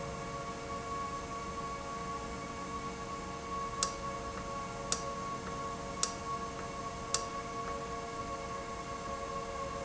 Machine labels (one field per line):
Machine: valve